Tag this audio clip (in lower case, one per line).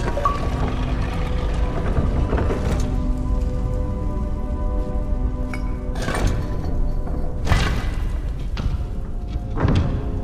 music
door